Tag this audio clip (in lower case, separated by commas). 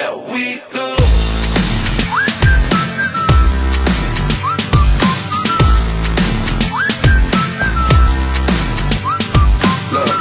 music, dubstep